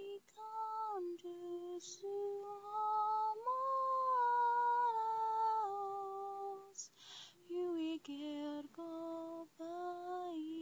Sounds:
lullaby

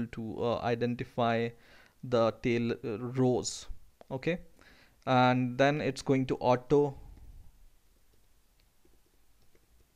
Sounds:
speech
silence

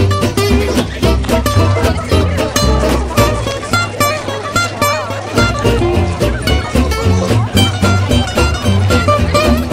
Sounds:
music
speech

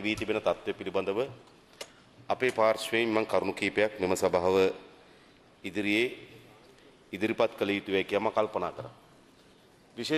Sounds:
male speech
speech
monologue

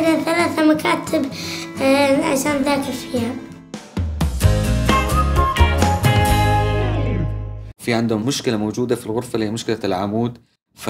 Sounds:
child speech
music for children

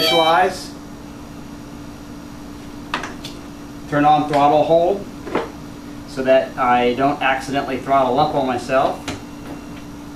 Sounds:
music
speech
inside a small room

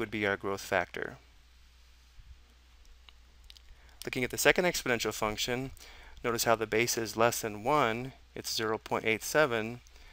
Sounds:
speech

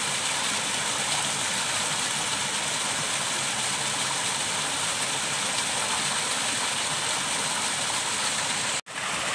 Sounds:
waterfall burbling

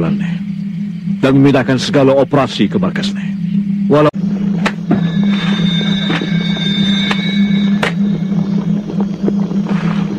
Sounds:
speech
outside, rural or natural
inside a small room
music

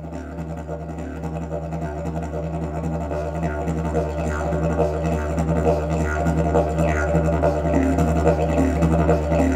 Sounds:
music
didgeridoo

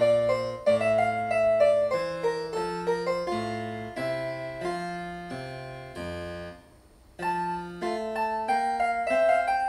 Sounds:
piano
music
musical instrument
keyboard (musical)
harpsichord
playing harpsichord

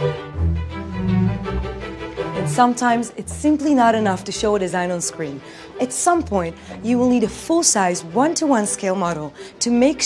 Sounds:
music
speech

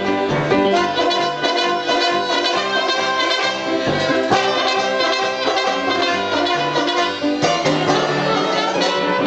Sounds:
musical instrument
fiddle
music
trumpet

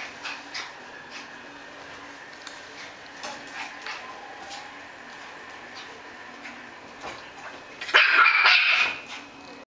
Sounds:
cat
animal
pets

